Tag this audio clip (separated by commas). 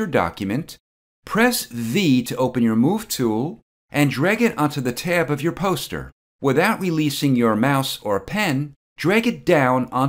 Speech